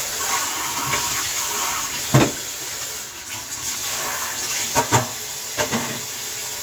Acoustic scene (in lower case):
kitchen